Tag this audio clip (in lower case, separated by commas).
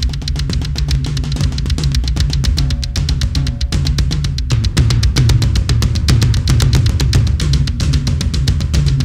bass drum, drum kit, music, drum, musical instrument